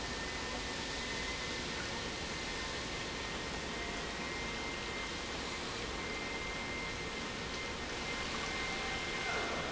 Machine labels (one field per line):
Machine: pump